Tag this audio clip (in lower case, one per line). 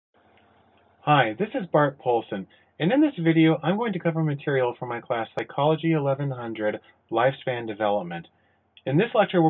speech